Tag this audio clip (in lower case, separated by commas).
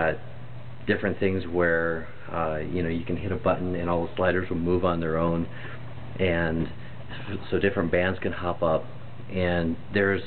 speech